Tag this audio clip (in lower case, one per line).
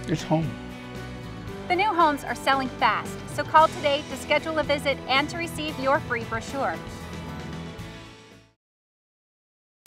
speech
music